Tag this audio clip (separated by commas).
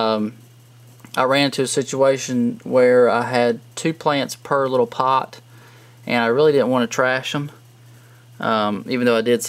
Speech